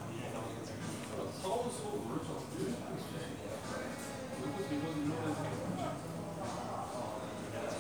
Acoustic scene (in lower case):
cafe